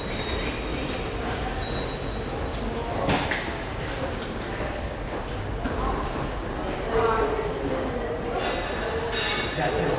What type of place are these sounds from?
subway station